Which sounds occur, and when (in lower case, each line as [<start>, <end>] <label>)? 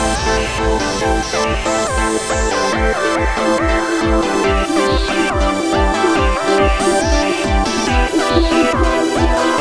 [0.00, 9.60] music